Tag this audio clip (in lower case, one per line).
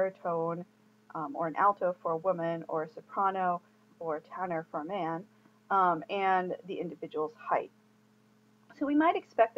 speech